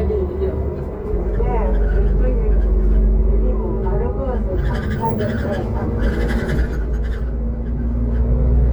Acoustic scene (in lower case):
bus